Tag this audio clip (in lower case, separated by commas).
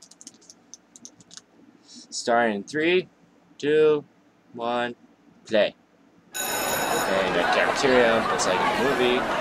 speech